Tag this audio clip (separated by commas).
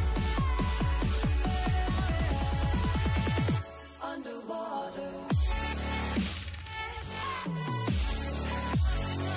Music